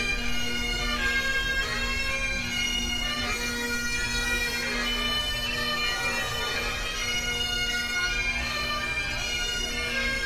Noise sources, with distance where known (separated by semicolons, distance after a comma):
music from a fixed source, near